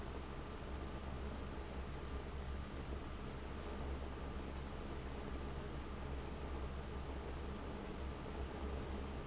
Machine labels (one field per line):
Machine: fan